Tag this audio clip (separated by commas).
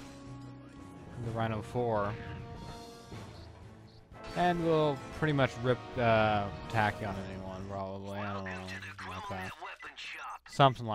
Music, Speech